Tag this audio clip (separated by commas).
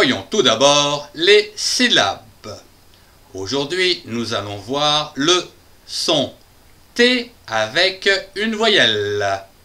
Speech